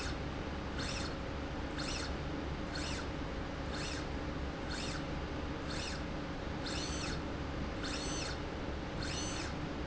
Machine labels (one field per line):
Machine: slide rail